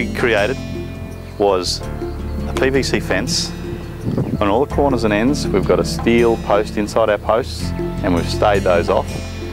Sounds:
music, speech

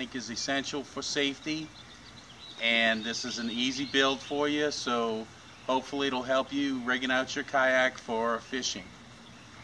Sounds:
speech

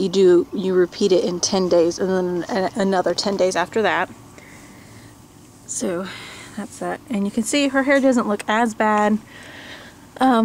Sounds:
speech

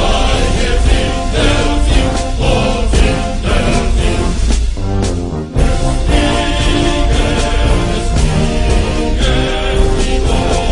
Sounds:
music

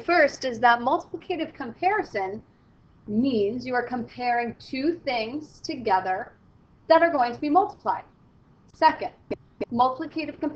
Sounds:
speech

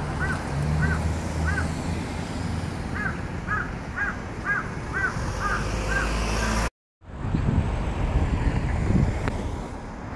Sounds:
crow cawing

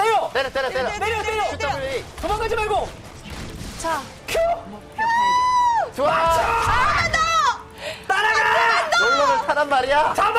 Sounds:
speech

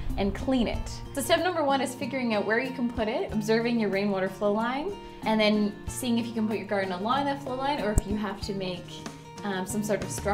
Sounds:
music, speech

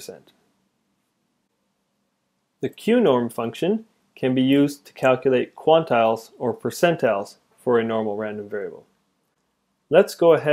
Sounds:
speech

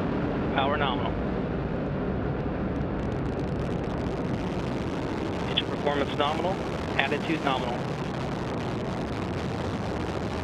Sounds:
missile launch

